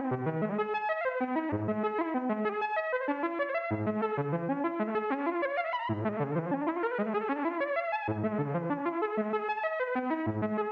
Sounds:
Sampler

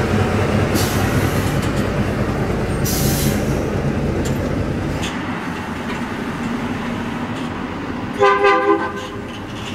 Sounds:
Truck, Vehicle

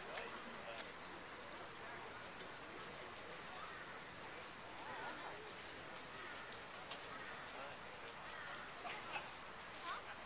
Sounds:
Speech, Vehicle

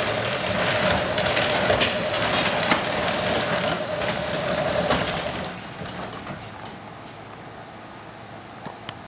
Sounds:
Sliding door

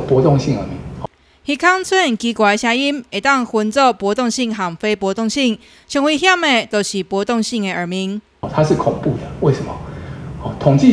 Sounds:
Speech

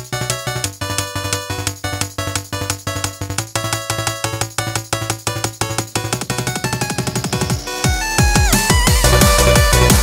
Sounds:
Electronica, Electronic music, Music

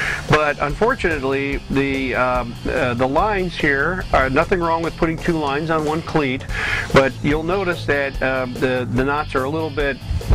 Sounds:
Music, Speech

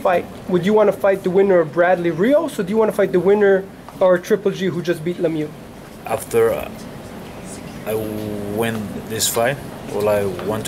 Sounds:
Speech

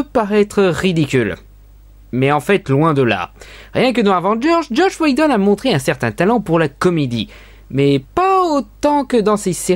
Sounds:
Speech

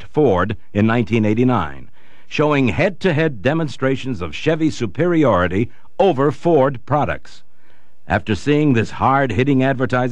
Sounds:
Speech

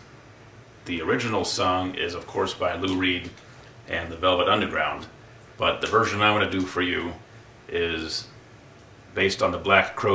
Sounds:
Speech

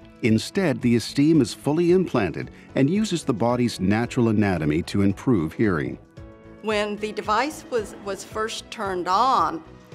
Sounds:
Music, Speech

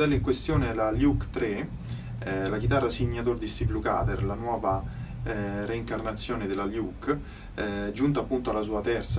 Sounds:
Speech

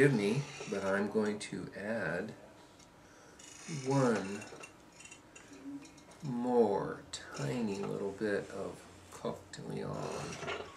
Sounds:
Speech

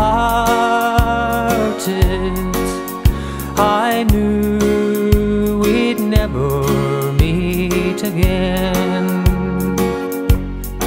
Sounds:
Music

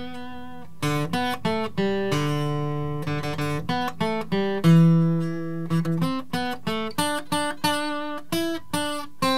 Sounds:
Musical instrument, Strum, Guitar, Plucked string instrument, Music

